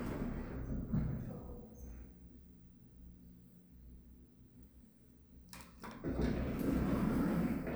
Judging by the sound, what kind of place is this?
elevator